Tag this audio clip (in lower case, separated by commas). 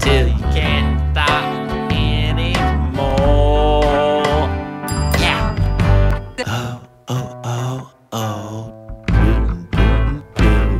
christmas music, music